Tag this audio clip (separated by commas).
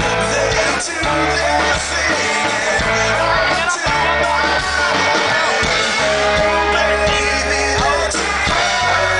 Music